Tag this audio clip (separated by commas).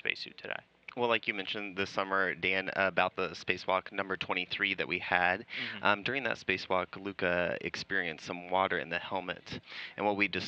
Speech